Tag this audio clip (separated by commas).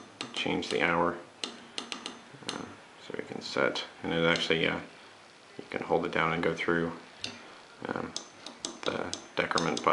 Speech, inside a small room